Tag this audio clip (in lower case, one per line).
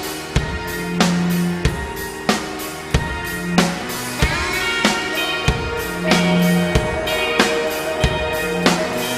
music